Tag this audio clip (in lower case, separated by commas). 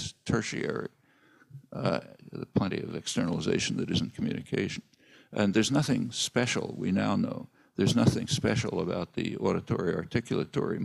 speech, man speaking, monologue